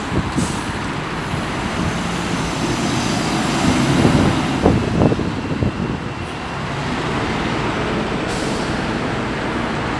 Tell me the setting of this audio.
street